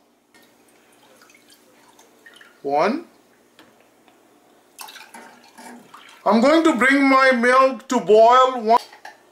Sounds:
speech
inside a small room

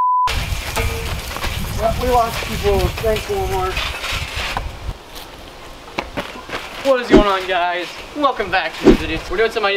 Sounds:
bouncing on trampoline

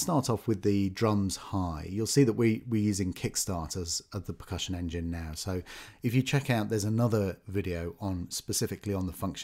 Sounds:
speech

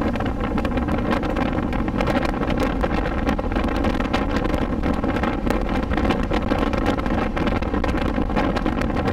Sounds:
car
vehicle
motor vehicle (road)

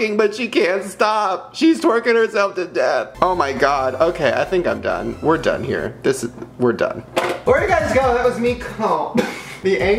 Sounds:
music
speech

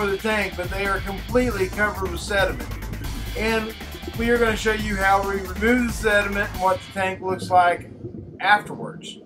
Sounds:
speech
music

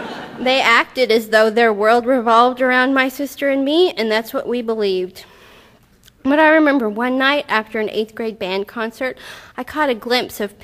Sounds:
speech

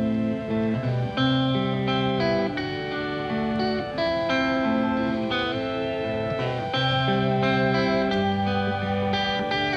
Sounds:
music

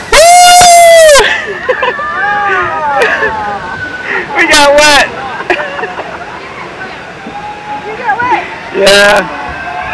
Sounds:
speech noise
speech
slosh

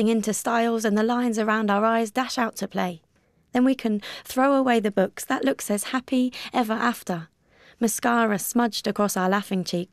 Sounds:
speech

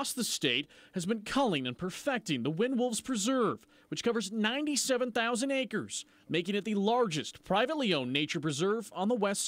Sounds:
speech

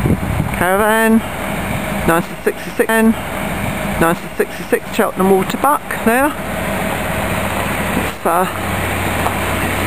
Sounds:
vehicle
speech

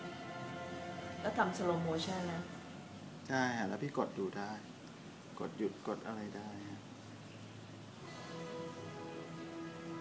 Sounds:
speech
music

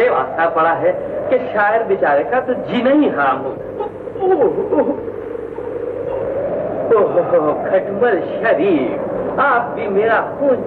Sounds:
speech

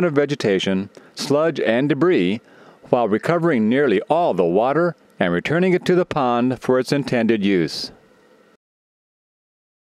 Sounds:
speech

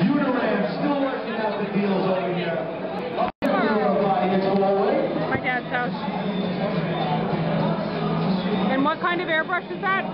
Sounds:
inside a public space
speech
music

